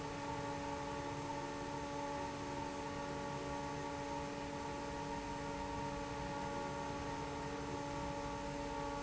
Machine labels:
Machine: fan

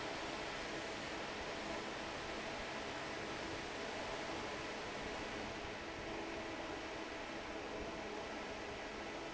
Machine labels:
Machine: fan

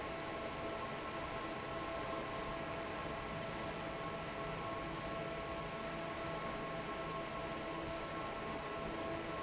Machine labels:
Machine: fan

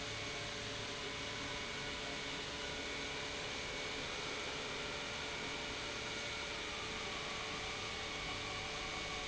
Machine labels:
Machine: pump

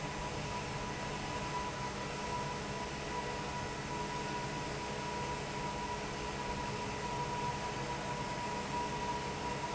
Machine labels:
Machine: fan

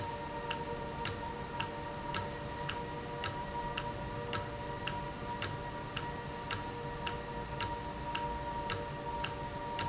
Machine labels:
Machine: valve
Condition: normal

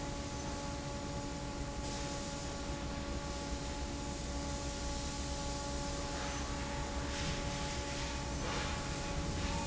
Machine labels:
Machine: fan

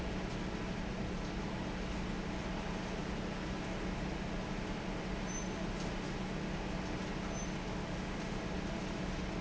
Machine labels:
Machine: fan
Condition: normal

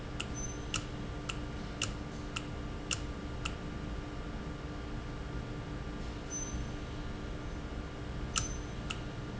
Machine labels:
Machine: valve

